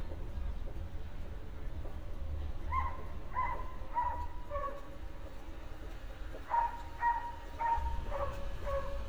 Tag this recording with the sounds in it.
dog barking or whining